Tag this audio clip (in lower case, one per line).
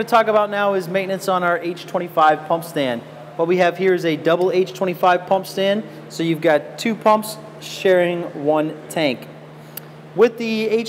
speech